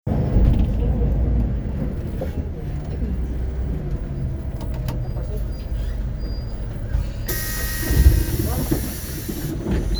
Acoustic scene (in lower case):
bus